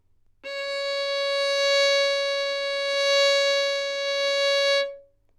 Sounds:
music, musical instrument, bowed string instrument

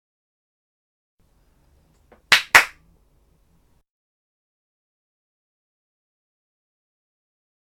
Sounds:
clapping, hands

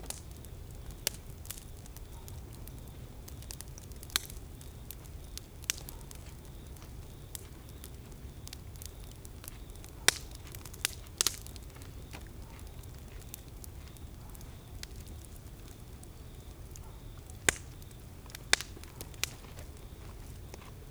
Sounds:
crackle, fire

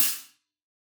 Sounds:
cymbal, music, percussion, hi-hat, musical instrument

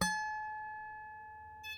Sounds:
musical instrument, harp, music

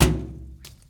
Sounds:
thud

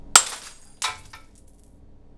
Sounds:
shatter, glass

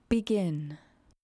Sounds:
speech, human voice, woman speaking

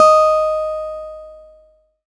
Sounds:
music, plucked string instrument, musical instrument, guitar, acoustic guitar

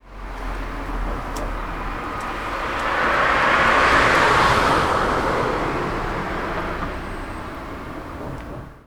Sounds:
car, motor vehicle (road), vehicle

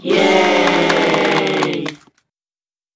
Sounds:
cheering, human group actions, applause

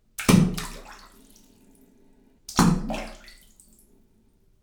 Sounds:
liquid, splatter

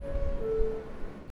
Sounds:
doorbell, alarm, domestic sounds, vehicle, metro, door, rail transport

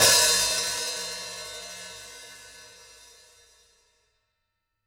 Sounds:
percussion, cymbal, music, hi-hat, musical instrument

